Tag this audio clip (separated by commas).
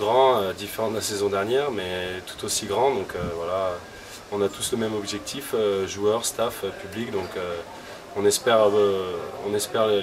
Speech